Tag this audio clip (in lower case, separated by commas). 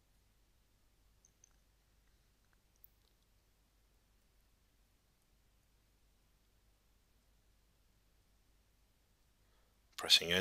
speech, silence